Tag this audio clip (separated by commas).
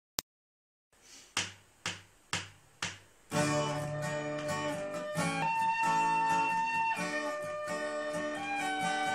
Plucked string instrument, Music, Guitar, Musical instrument